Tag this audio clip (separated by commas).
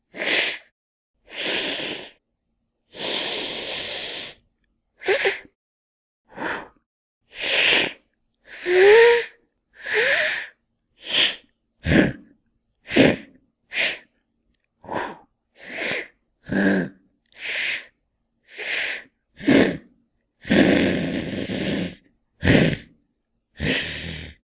Hiss